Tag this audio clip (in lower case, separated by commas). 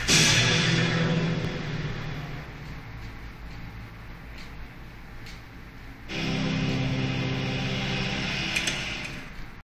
television, music